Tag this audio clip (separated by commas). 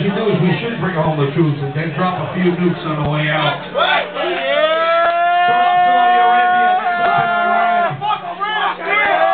Speech